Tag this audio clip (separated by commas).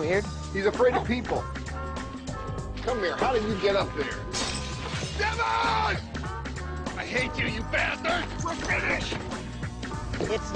Dog, Speech, Bow-wow, Animal, Yip, Music